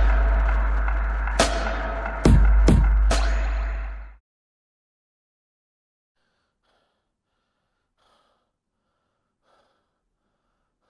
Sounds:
Music, inside a small room

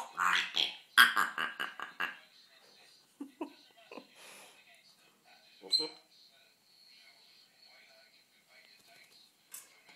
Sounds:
Domestic animals, Animal, inside a small room

